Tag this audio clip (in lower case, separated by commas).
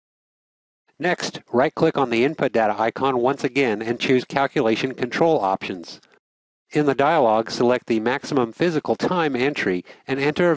speech